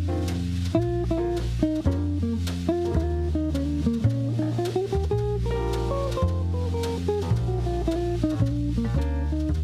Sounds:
Music, Theme music

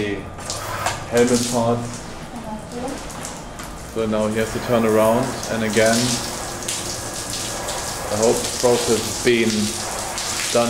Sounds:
Speech

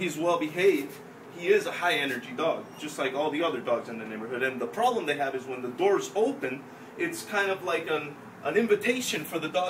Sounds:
Speech

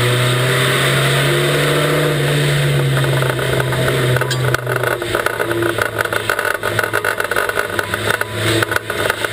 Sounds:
Car passing by, Car, Vehicle

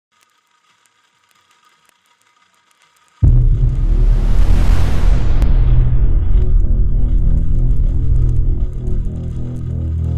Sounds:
Didgeridoo, Music

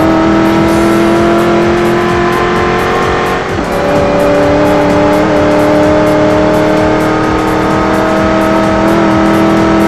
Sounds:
Vehicle, revving, Music

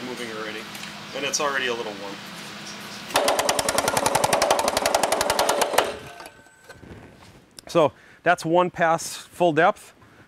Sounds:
Speech

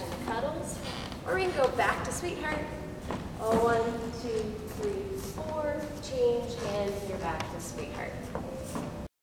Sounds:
Speech

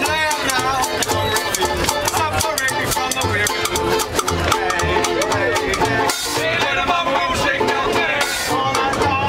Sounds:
Music

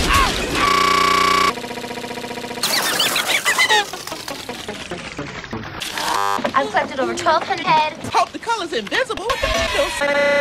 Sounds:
Speech

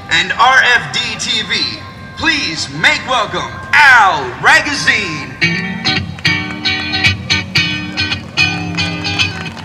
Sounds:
Music, Speech

